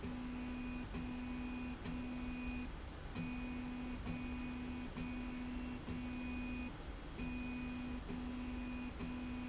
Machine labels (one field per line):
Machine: slide rail